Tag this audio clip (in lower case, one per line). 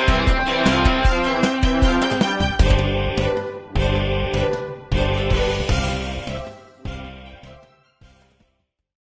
music